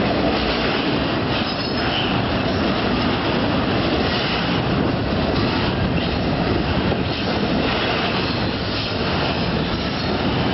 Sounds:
Train, Rail transport, Vehicle, Railroad car

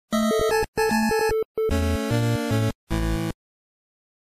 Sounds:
Music

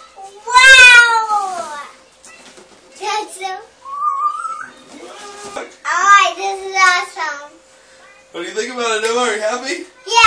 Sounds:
Speech, inside a small room

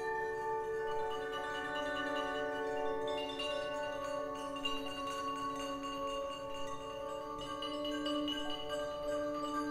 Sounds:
Percussion, Music

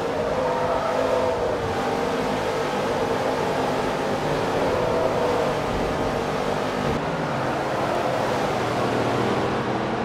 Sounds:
Car

